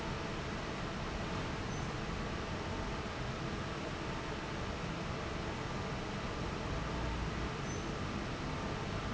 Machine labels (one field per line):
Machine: fan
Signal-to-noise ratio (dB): -6 dB